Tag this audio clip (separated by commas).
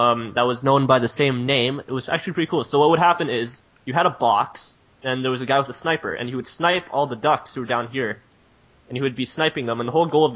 Speech